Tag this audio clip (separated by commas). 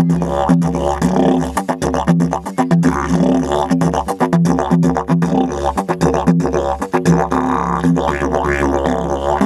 playing didgeridoo